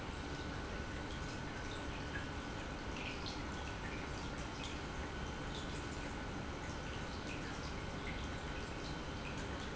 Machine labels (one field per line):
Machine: pump